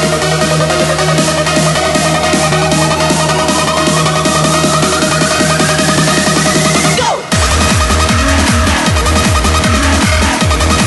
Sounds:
Music, Electronic music, Techno

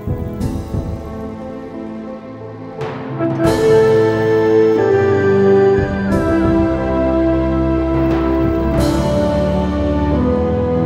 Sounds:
New-age music, Music

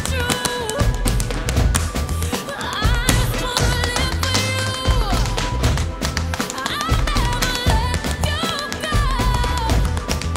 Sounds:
tap dancing

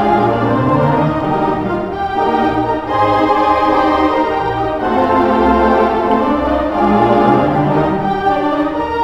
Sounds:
Hammond organ, Organ

